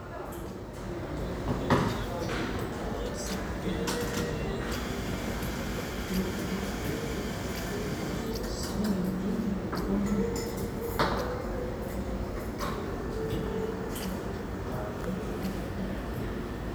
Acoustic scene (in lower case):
cafe